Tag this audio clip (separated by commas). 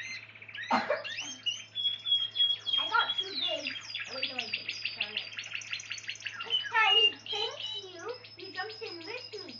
Bird, bird song, Chirp